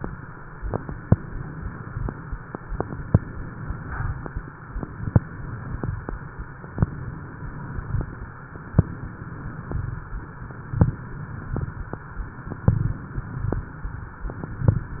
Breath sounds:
Inhalation: 1.08-2.01 s, 3.12-4.22 s, 4.99-5.91 s, 6.75-8.00 s, 8.77-9.83 s, 10.82-11.66 s, 12.71-13.55 s, 14.38-15.00 s
Crackles: 1.08-2.01 s, 3.10-4.22 s, 4.99-5.91 s, 6.75-8.00 s, 8.77-9.83 s, 10.82-11.66 s, 12.71-13.55 s, 14.38-15.00 s

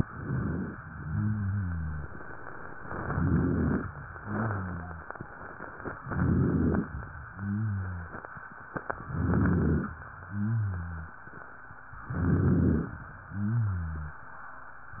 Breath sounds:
Inhalation: 0.00-0.79 s, 2.79-3.91 s, 6.04-6.89 s, 9.09-9.94 s, 12.05-13.02 s
Rhonchi: 0.89-2.12 s, 2.96-3.91 s, 4.19-5.08 s, 6.00-6.92 s, 7.23-8.12 s, 9.05-9.96 s, 10.19-11.16 s, 12.03-13.00 s, 13.25-14.22 s

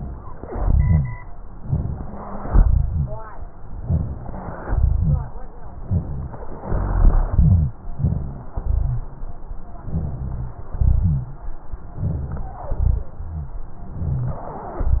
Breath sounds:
Inhalation: 1.61-2.45 s, 3.79-4.63 s, 5.79-6.62 s, 7.97-8.52 s, 9.85-10.72 s, 12.01-12.71 s, 13.93-14.50 s
Exhalation: 0.46-1.16 s, 2.43-3.28 s, 4.65-5.39 s, 6.64-7.76 s, 8.58-9.13 s, 10.76-11.46 s, 12.75-13.61 s
Wheeze: 1.61-2.45 s, 3.79-4.63 s, 5.79-6.62 s, 12.01-12.71 s, 13.93-14.50 s
Rhonchi: 0.46-1.16 s, 2.43-3.28 s, 4.65-5.39 s, 6.64-7.76 s, 7.97-8.52 s, 8.58-9.13 s, 9.85-10.72 s, 10.76-11.46 s, 12.75-13.61 s

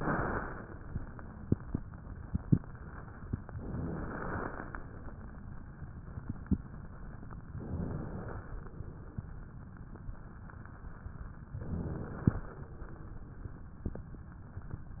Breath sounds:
Inhalation: 3.61-4.86 s, 7.55-8.80 s, 11.48-12.73 s

